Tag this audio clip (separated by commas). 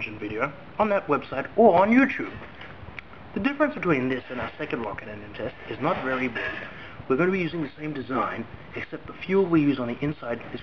Speech